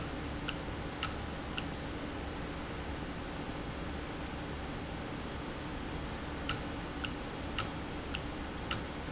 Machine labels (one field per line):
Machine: valve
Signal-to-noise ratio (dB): -6 dB